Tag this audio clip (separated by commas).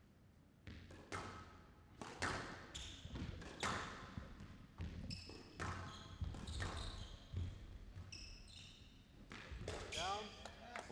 playing squash